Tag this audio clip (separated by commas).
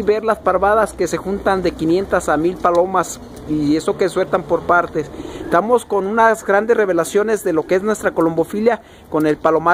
Bird, Pigeon, Coo, Bird vocalization